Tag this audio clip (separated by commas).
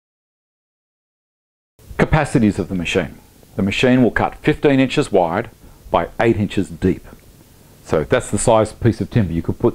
planing timber